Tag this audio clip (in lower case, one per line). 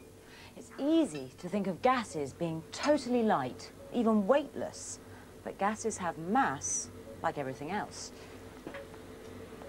speech